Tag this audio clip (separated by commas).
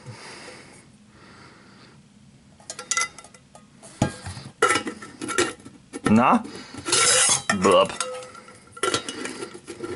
silverware